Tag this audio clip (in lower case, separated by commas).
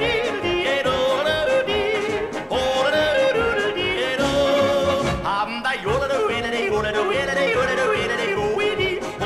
yodelling